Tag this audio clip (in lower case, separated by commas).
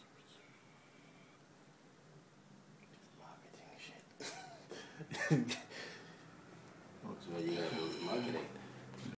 speech